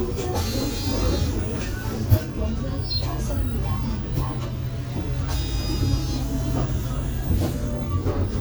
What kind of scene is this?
bus